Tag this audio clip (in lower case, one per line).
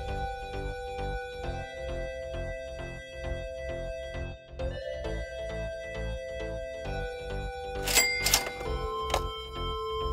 music